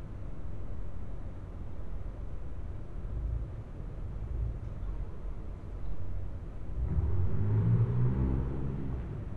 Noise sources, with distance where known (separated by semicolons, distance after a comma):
medium-sounding engine, far